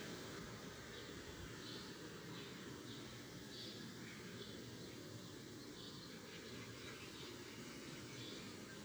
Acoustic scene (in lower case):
park